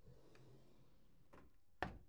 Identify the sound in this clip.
drawer closing